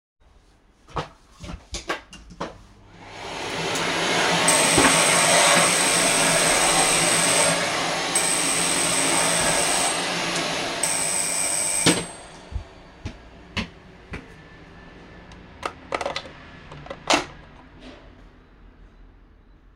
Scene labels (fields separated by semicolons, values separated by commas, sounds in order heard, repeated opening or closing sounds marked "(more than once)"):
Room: hallway; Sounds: footsteps, vacuum cleaner, bell ringing